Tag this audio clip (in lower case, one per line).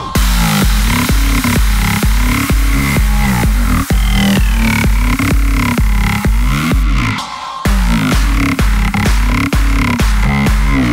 music